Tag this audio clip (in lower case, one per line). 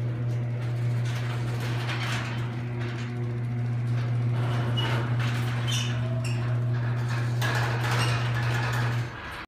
sliding door